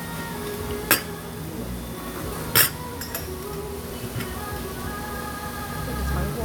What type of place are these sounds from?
restaurant